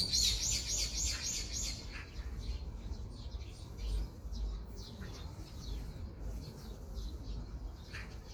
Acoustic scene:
park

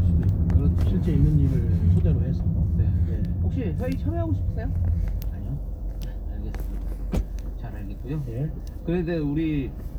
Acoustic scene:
car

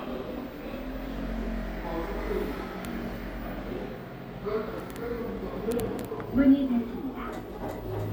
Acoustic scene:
elevator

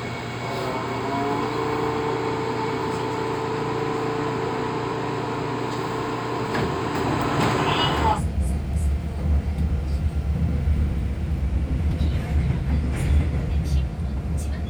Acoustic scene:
subway train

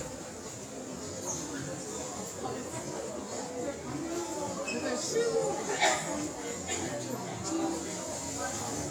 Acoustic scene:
crowded indoor space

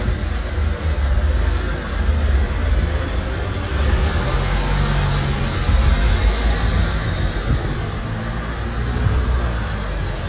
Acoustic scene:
street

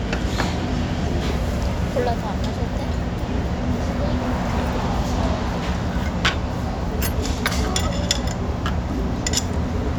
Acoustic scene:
restaurant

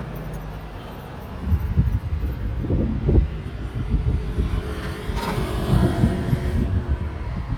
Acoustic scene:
residential area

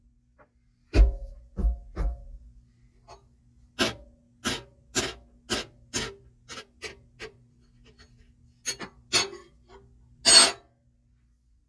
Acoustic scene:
kitchen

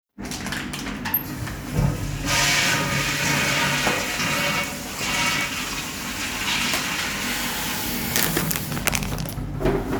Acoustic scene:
restroom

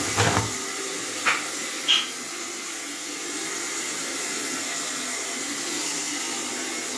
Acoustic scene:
restroom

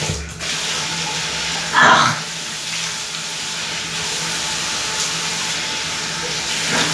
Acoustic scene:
restroom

